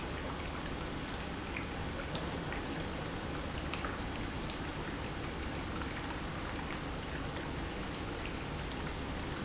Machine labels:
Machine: pump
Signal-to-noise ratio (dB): -6 dB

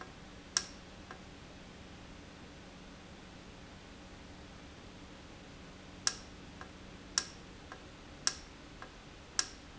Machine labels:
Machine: valve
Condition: normal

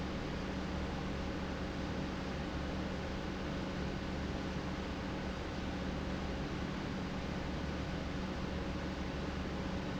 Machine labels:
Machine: pump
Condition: normal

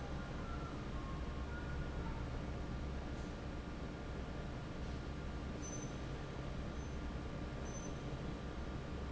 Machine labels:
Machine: fan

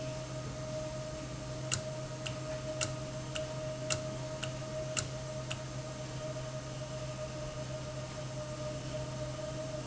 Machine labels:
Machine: valve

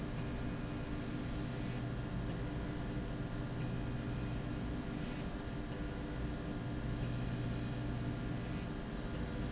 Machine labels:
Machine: slide rail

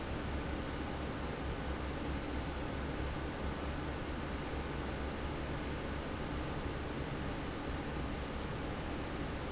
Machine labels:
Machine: fan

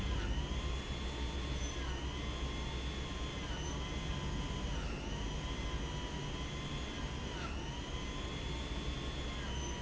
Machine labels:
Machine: pump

